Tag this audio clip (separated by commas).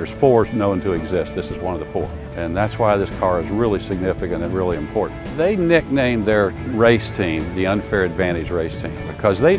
Music, Speech